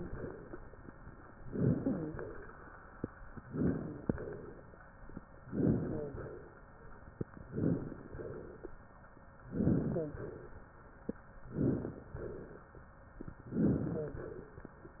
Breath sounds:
1.39-2.09 s: inhalation
1.77-2.13 s: wheeze
2.09-2.63 s: exhalation
3.48-4.08 s: inhalation
3.70-4.06 s: wheeze
4.08-4.74 s: exhalation
5.44-6.11 s: inhalation
5.78-6.14 s: wheeze
6.11-6.63 s: exhalation
7.49-8.07 s: inhalation
8.07-8.73 s: exhalation
9.50-10.16 s: inhalation
9.84-10.20 s: wheeze
10.16-10.72 s: exhalation
11.53-12.09 s: inhalation
12.09-12.79 s: exhalation
13.51-14.22 s: inhalation
13.91-14.19 s: wheeze
14.22-14.70 s: exhalation

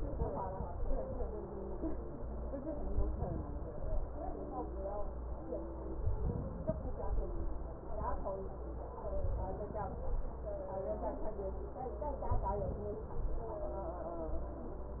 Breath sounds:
0.00-1.18 s: inhalation
0.00-1.18 s: crackles
2.96-4.14 s: inhalation
2.96-4.14 s: crackles
6.10-7.28 s: inhalation
6.10-7.28 s: crackles
9.14-10.32 s: inhalation
9.14-10.32 s: crackles
12.35-13.45 s: inhalation
12.35-13.45 s: crackles

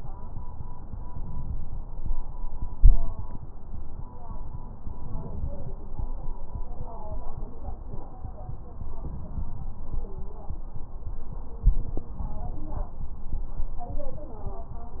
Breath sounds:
0.90-2.09 s: inhalation
2.74-3.28 s: exhalation
4.78-5.73 s: inhalation
8.99-9.71 s: inhalation
11.69-12.12 s: exhalation

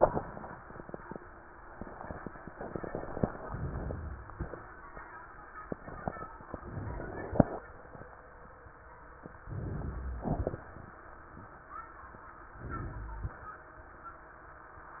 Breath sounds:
3.37-4.32 s: inhalation
4.32-4.76 s: exhalation
6.47-7.58 s: inhalation
9.48-10.30 s: inhalation
10.30-10.77 s: exhalation
12.50-13.37 s: inhalation

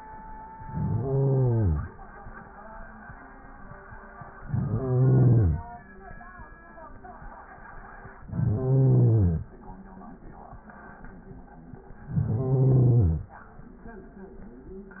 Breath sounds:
0.56-1.94 s: inhalation
4.40-5.83 s: inhalation
8.29-9.49 s: inhalation
12.12-13.32 s: inhalation

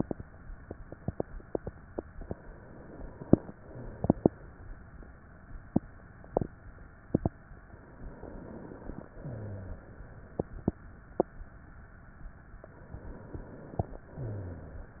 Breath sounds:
8.06-9.06 s: inhalation
9.16-9.88 s: rhonchi
9.16-10.14 s: exhalation
12.88-14.06 s: inhalation
14.16-14.88 s: exhalation
14.16-14.88 s: rhonchi

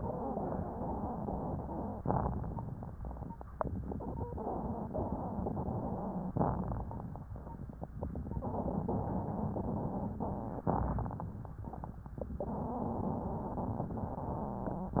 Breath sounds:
2.01-3.33 s: inhalation
2.01-3.33 s: crackles
6.35-7.30 s: inhalation
6.35-7.30 s: crackles
10.66-11.60 s: inhalation
10.66-11.60 s: crackles

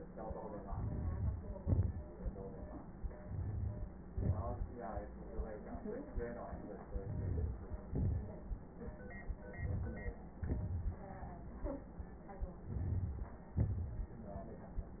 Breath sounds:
0.57-1.59 s: inhalation
0.57-1.55 s: crackles
1.58-3.21 s: exhalation
1.58-3.21 s: crackles
3.23-4.03 s: inhalation
3.23-4.03 s: crackles
4.05-4.75 s: exhalation
6.86-7.88 s: inhalation
6.86-7.88 s: crackles
7.91-8.93 s: exhalation
9.50-10.39 s: inhalation
9.50-10.39 s: crackles
10.41-11.25 s: exhalation
10.41-11.25 s: crackles
12.58-13.47 s: inhalation
12.58-13.47 s: crackles
13.49-14.18 s: exhalation

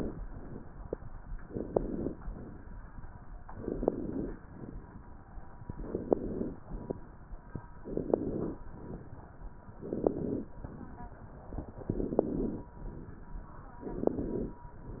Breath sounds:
1.50-2.11 s: inhalation
2.24-2.68 s: exhalation
3.59-4.33 s: inhalation
4.46-4.82 s: exhalation
5.69-6.57 s: inhalation
6.62-6.98 s: exhalation
7.82-8.58 s: inhalation
8.73-9.35 s: exhalation
9.75-10.51 s: inhalation
10.65-11.27 s: exhalation
11.92-12.68 s: inhalation
12.83-13.45 s: exhalation
13.85-14.61 s: inhalation

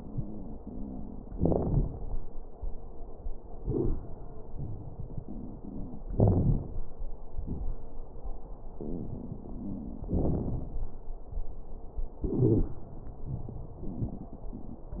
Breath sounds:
0.00-1.34 s: wheeze
6.13-6.83 s: inhalation
6.13-6.83 s: wheeze
7.30-7.86 s: exhalation
7.30-7.86 s: crackles
12.41-12.70 s: wheeze

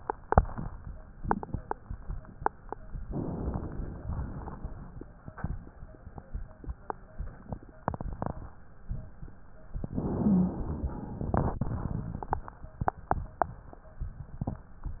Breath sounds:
3.06-4.04 s: inhalation
4.04-5.07 s: exhalation
9.91-11.29 s: inhalation
10.23-10.62 s: wheeze

